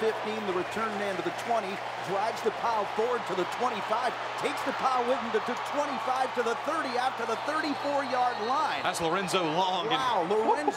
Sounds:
speech

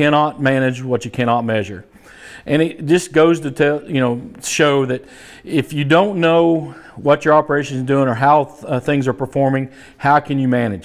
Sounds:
speech

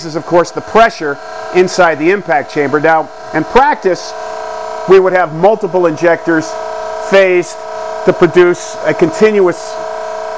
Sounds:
speech

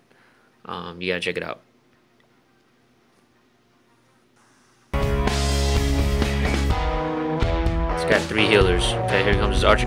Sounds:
music, speech

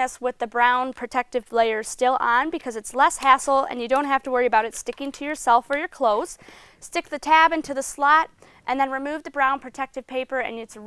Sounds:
speech

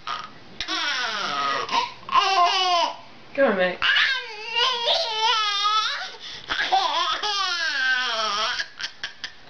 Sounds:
baby laughter

